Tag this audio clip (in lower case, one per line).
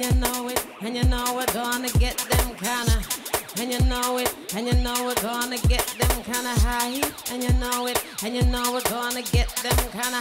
music